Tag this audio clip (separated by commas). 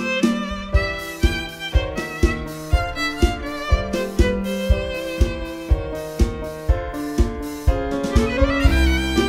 fiddle, Musical instrument, Music